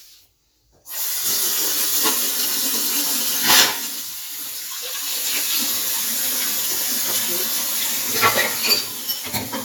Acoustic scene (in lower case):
kitchen